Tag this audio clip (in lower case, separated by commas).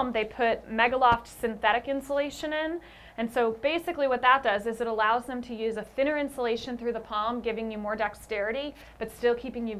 speech